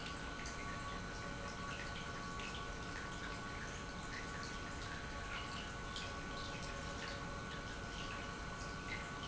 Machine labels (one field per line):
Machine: pump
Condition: normal